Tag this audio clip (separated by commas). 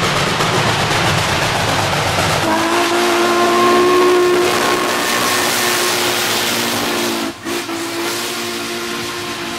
Train, Rail transport, Clickety-clack, Train whistle, train wagon